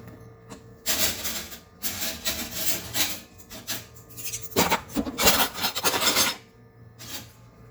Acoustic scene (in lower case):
kitchen